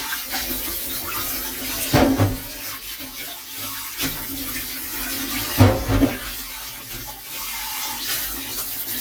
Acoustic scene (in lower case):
kitchen